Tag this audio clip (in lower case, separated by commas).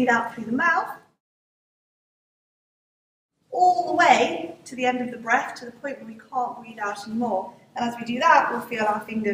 speech